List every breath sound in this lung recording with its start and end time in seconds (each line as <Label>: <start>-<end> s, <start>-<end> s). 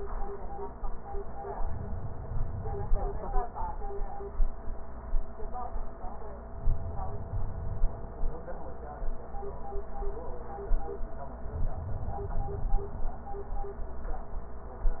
Inhalation: 1.61-3.38 s, 6.60-8.38 s, 11.38-13.16 s